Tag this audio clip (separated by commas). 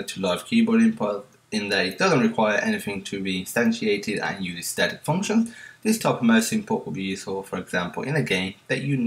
Speech